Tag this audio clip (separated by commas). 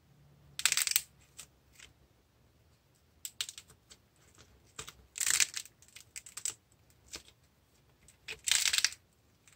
ice cracking